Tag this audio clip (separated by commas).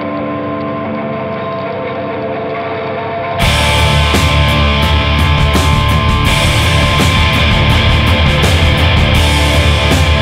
Music